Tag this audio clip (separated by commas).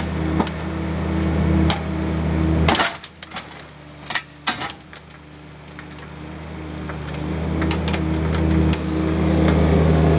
Vehicle